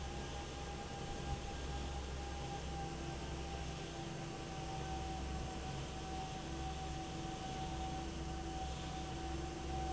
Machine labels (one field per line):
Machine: fan